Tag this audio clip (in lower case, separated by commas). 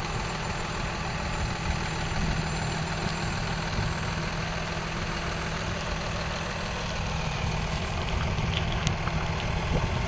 truck, vehicle